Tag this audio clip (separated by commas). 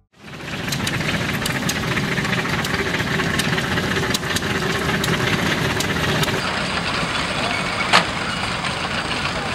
Heavy engine (low frequency), Vehicle, Medium engine (mid frequency), Engine